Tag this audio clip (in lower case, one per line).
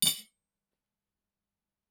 dishes, pots and pans
domestic sounds
cutlery